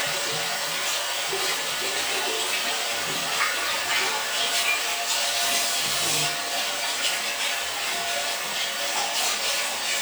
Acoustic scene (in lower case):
restroom